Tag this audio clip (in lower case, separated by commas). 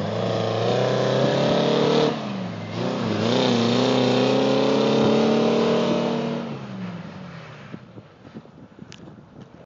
truck, vehicle